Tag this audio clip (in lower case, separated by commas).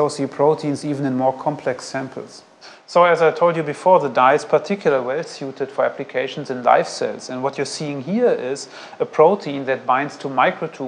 inside a small room, speech